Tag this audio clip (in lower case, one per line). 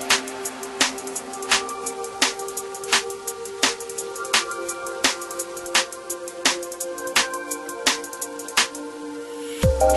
music